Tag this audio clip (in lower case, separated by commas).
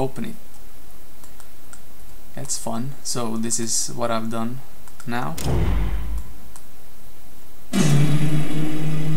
speech